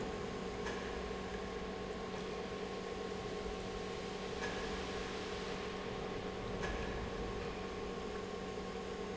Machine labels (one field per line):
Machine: pump